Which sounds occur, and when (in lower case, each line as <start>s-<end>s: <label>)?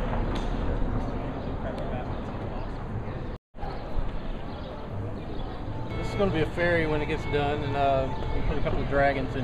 0.0s-3.3s: background noise
3.5s-9.4s: background noise
5.8s-6.4s: male speech
6.5s-8.1s: male speech
8.3s-9.2s: male speech